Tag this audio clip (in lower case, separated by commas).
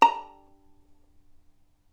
bowed string instrument, music, musical instrument